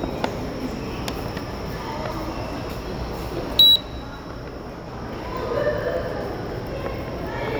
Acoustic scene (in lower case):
subway station